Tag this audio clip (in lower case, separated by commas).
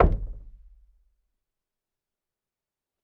door, domestic sounds, knock